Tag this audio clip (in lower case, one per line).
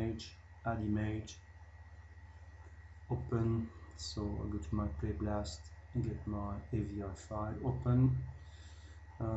speech